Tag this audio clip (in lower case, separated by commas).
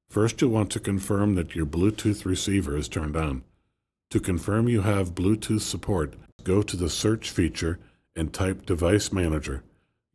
speech